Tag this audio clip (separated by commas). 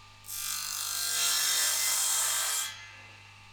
Tools, Sawing